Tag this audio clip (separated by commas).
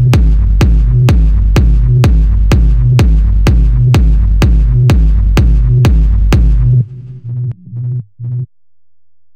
Music